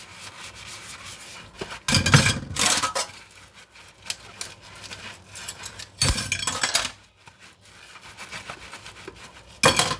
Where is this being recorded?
in a kitchen